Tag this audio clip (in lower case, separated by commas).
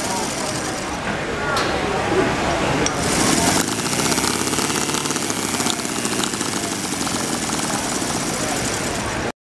speech